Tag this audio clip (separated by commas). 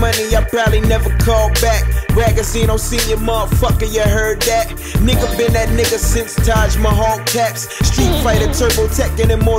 Music